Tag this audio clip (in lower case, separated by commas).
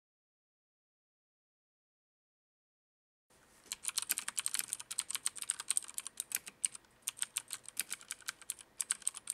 computer keyboard, typing on computer keyboard, typing